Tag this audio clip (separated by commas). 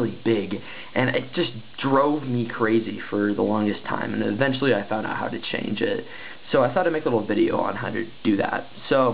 Speech